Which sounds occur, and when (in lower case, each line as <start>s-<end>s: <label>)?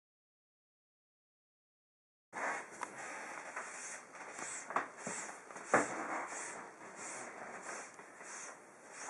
2.3s-2.6s: scrape
2.3s-9.0s: background noise
2.7s-2.9s: clicking
2.9s-3.3s: scrape
3.5s-3.6s: generic impact sounds
3.6s-4.0s: scrape
4.2s-4.6s: scrape
4.3s-4.4s: generic impact sounds
4.7s-4.8s: generic impact sounds
4.9s-5.4s: scrape
5.0s-5.1s: generic impact sounds
5.5s-5.6s: generic impact sounds
5.6s-6.7s: scrape
5.7s-5.8s: generic impact sounds
7.0s-7.3s: scrape
7.6s-8.0s: scrape
7.9s-8.0s: clicking
8.2s-8.5s: scrape
8.8s-9.0s: scrape
9.0s-9.0s: generic impact sounds